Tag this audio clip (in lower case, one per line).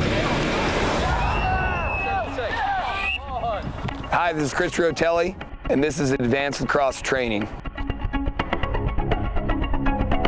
speech
music